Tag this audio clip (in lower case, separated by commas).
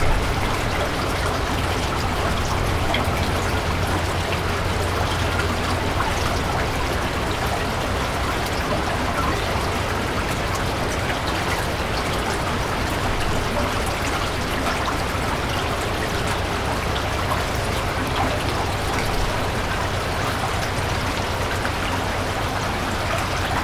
liquid, trickle, pour, water, stream